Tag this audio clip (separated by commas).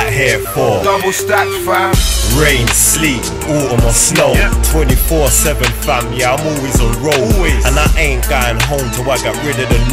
Music